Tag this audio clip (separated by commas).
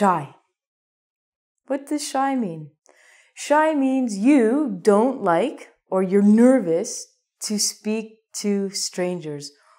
Speech